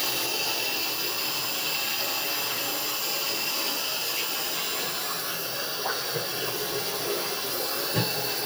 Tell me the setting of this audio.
restroom